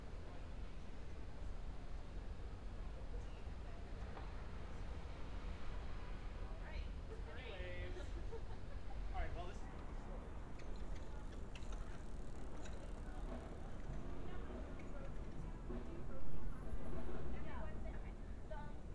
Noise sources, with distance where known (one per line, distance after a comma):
person or small group talking